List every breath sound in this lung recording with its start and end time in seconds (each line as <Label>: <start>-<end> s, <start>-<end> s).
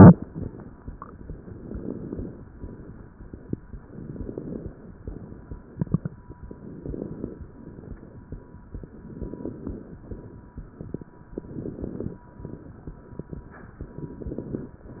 Inhalation: 1.50-2.43 s, 3.81-4.75 s, 6.49-7.42 s, 9.01-9.94 s, 11.31-12.24 s, 13.89-14.82 s
Crackles: 1.50-2.43 s, 3.81-4.75 s, 6.49-7.42 s, 9.01-9.94 s, 11.31-12.24 s, 13.89-14.82 s